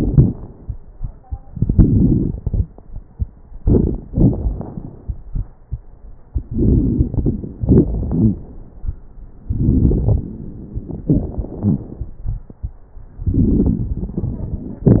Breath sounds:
3.60-4.01 s: inhalation
3.60-4.01 s: crackles
4.10-5.14 s: exhalation
4.10-5.14 s: crackles
6.42-7.55 s: inhalation
6.42-7.55 s: crackles
7.60-8.48 s: exhalation
7.88-8.43 s: wheeze
9.47-10.27 s: inhalation
9.47-10.27 s: crackles
11.02-12.49 s: exhalation
11.02-12.49 s: crackles
13.24-14.88 s: inhalation
13.24-14.88 s: crackles

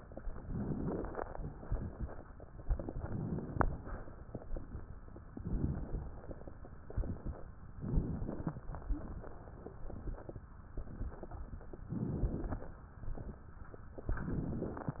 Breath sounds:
0.32-1.18 s: inhalation
0.32-1.18 s: crackles
2.66-3.76 s: inhalation
2.66-3.76 s: crackles
5.28-6.22 s: inhalation
5.28-6.22 s: crackles
6.91-7.37 s: exhalation
6.91-7.37 s: crackles
7.74-8.69 s: inhalation
7.74-8.69 s: crackles
11.86-12.81 s: inhalation
11.86-12.81 s: crackles
14.10-15.00 s: inhalation
14.10-15.00 s: crackles

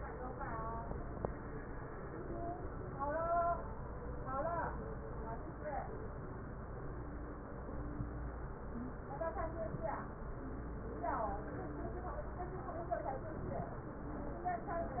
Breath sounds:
8.70-9.01 s: wheeze

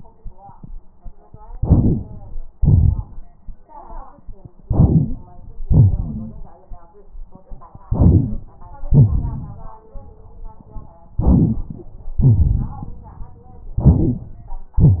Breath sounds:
1.52-2.32 s: inhalation
2.56-3.34 s: exhalation
4.67-5.52 s: inhalation
5.66-6.55 s: exhalation
5.96-6.34 s: wheeze
7.90-8.45 s: inhalation
8.11-8.38 s: wheeze
8.89-9.76 s: exhalation
11.21-12.06 s: inhalation
12.21-13.01 s: exhalation
13.74-14.19 s: wheeze
13.80-14.53 s: inhalation

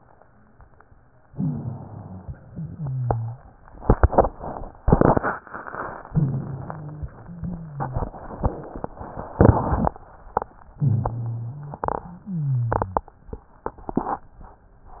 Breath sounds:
1.29-2.43 s: inhalation
1.29-2.43 s: rhonchi
2.49-3.40 s: exhalation
2.49-3.40 s: rhonchi
6.06-7.05 s: inhalation
6.06-7.05 s: wheeze
7.15-8.13 s: exhalation
7.15-8.13 s: wheeze
10.80-11.85 s: inhalation
10.80-11.85 s: rhonchi
12.11-13.09 s: exhalation
12.11-13.09 s: wheeze

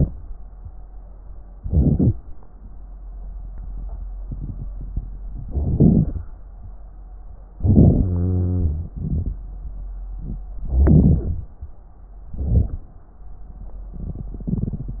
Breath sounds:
1.53-2.15 s: inhalation
5.48-6.25 s: inhalation
7.56-8.09 s: inhalation
8.06-8.92 s: wheeze
8.95-9.41 s: exhalation
10.71-11.47 s: inhalation
12.35-12.89 s: inhalation

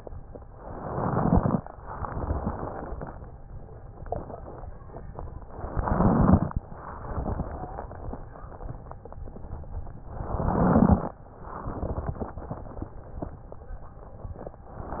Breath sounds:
0.48-1.56 s: crackles
0.52-1.56 s: inhalation
1.76-3.28 s: exhalation
1.76-3.28 s: crackles
5.44-6.52 s: inhalation
5.44-6.52 s: crackles
6.72-9.20 s: exhalation
6.74-9.22 s: crackles
7.44-7.92 s: wheeze
10.16-11.16 s: inhalation
10.16-11.16 s: crackles
11.36-13.66 s: exhalation
11.36-13.66 s: crackles
14.76-15.00 s: inhalation
14.76-15.00 s: crackles

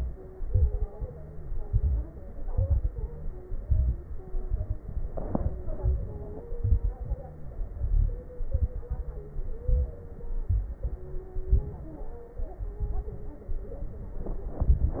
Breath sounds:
0.26-0.87 s: inhalation
0.26-0.87 s: crackles
0.85-1.59 s: exhalation
0.87-1.59 s: crackles
1.63-2.12 s: inhalation
2.24-2.92 s: crackles
2.30-2.90 s: inhalation
2.94-3.61 s: exhalation
2.94-3.61 s: crackles
3.65-4.22 s: inhalation
3.65-4.22 s: crackles
4.27-4.84 s: exhalation
4.27-4.84 s: crackles
5.74-6.53 s: inhalation
5.74-6.53 s: crackles
6.59-7.58 s: exhalation
6.59-7.58 s: crackles
7.79-8.78 s: inhalation
7.79-8.78 s: crackles
8.85-9.52 s: exhalation
8.85-9.52 s: crackles
9.58-10.24 s: inhalation
9.58-10.24 s: crackles
10.49-11.51 s: exhalation
10.49-11.51 s: crackles
11.52-12.12 s: inhalation
11.52-12.12 s: crackles
12.31-13.47 s: exhalation
12.31-13.47 s: crackles
14.57-15.00 s: inhalation
14.57-15.00 s: crackles

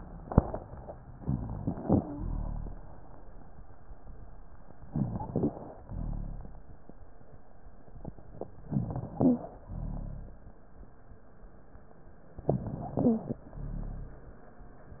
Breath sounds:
1.16-2.03 s: inhalation
1.16-2.03 s: rhonchi
1.94-2.28 s: wheeze
2.15-3.02 s: exhalation
2.15-3.02 s: rhonchi
4.92-5.77 s: inhalation
4.92-5.77 s: rhonchi
5.86-6.72 s: exhalation
5.86-6.72 s: rhonchi
8.67-9.53 s: inhalation
8.67-9.53 s: rhonchi
9.16-9.51 s: wheeze
9.70-10.55 s: exhalation
9.70-10.55 s: rhonchi
12.52-13.38 s: inhalation
12.52-13.38 s: rhonchi
13.04-13.38 s: wheeze
13.55-14.40 s: exhalation
13.55-14.40 s: rhonchi

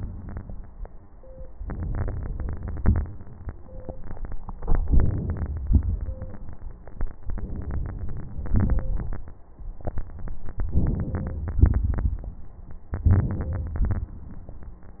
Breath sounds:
0.00-0.83 s: exhalation
1.55-2.73 s: inhalation
2.79-3.53 s: exhalation
4.74-5.68 s: inhalation
5.68-6.54 s: exhalation
7.22-8.52 s: inhalation
8.52-9.35 s: exhalation
10.75-11.62 s: inhalation
11.63-12.37 s: exhalation
12.97-13.91 s: inhalation
13.90-14.85 s: exhalation

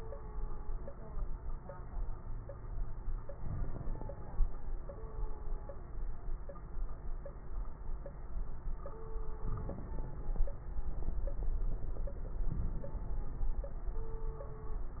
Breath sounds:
3.34-4.13 s: inhalation
3.34-4.13 s: crackles
9.48-10.27 s: inhalation
9.48-10.27 s: crackles
12.47-13.26 s: inhalation
12.47-13.26 s: crackles

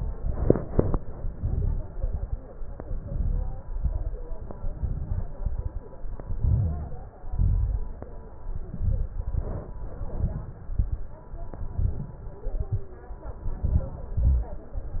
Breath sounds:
1.35-1.95 s: inhalation
1.35-1.95 s: crackles
1.96-2.43 s: exhalation
1.96-2.43 s: crackles
2.85-3.59 s: inhalation
2.85-3.59 s: crackles
3.63-4.37 s: exhalation
3.63-4.37 s: crackles
4.52-5.26 s: inhalation
4.52-5.26 s: crackles
5.28-5.87 s: exhalation
5.28-5.87 s: crackles
6.38-7.12 s: inhalation
6.38-7.12 s: crackles
7.16-7.90 s: exhalation
7.16-7.90 s: crackles
8.49-9.16 s: inhalation
8.49-9.16 s: crackles
9.18-9.78 s: exhalation
9.18-9.78 s: crackles
10.00-10.60 s: inhalation
10.00-10.60 s: crackles
10.64-11.25 s: exhalation
10.64-11.25 s: crackles
11.65-12.25 s: inhalation
11.65-12.25 s: crackles
12.43-13.03 s: exhalation
12.43-13.03 s: crackles
13.42-14.12 s: inhalation
13.42-14.12 s: crackles
14.14-14.69 s: exhalation
14.14-14.69 s: crackles

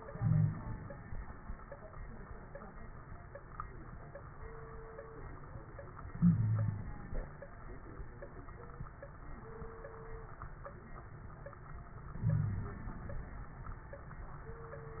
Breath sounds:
0.00-1.18 s: inhalation
0.14-0.58 s: wheeze
6.11-7.24 s: inhalation
6.20-6.88 s: wheeze
12.16-13.14 s: inhalation
12.26-12.77 s: wheeze

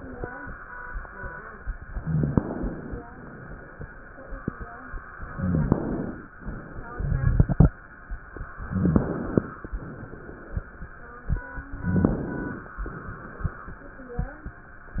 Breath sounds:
1.97-2.98 s: inhalation
1.99-2.41 s: rhonchi
3.02-3.85 s: exhalation
5.14-6.30 s: inhalation
5.33-5.75 s: rhonchi
6.45-7.72 s: exhalation
8.63-9.60 s: inhalation
8.69-9.11 s: rhonchi
9.62-10.80 s: exhalation
11.76-12.77 s: inhalation
11.84-12.26 s: rhonchi
12.90-13.91 s: exhalation

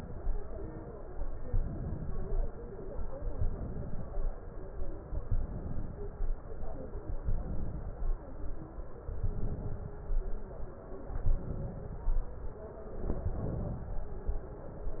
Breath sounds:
1.48-2.48 s: inhalation
3.38-4.12 s: inhalation
5.24-5.99 s: inhalation
7.26-8.01 s: inhalation
9.23-9.98 s: inhalation
11.16-12.03 s: inhalation
13.06-13.93 s: inhalation

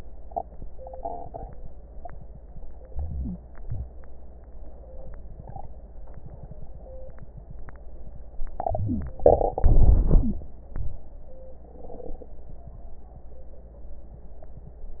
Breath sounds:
2.88-4.42 s: wheeze
2.90-3.64 s: inhalation
3.69-4.42 s: exhalation
8.55-9.51 s: wheeze
8.57-9.52 s: inhalation
9.63-10.58 s: exhalation
9.63-10.58 s: wheeze

